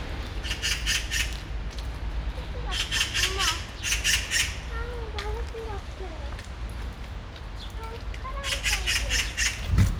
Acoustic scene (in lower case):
residential area